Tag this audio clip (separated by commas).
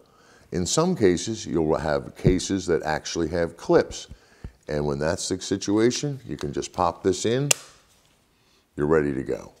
Speech